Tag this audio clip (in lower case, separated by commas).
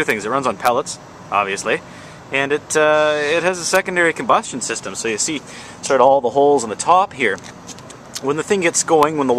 speech